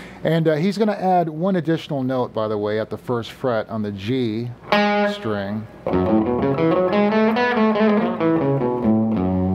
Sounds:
Strum, Electric guitar, Guitar, Musical instrument, Plucked string instrument, Speech, Acoustic guitar, Music

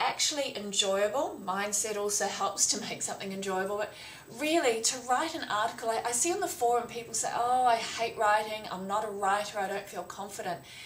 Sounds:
Speech

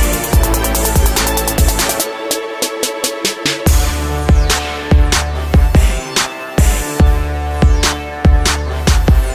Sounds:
Music

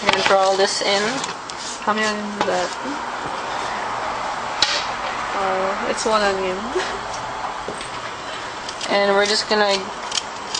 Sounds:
Speech

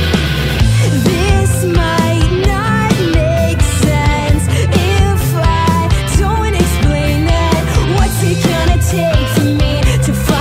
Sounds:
Music

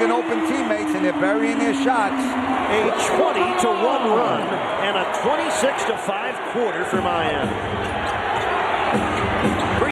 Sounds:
Speech

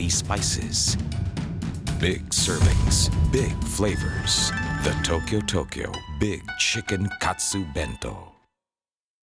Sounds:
Speech, Music

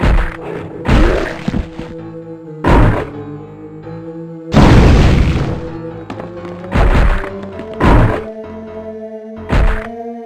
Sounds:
crash

